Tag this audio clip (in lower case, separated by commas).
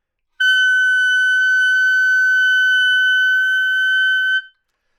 musical instrument, music, woodwind instrument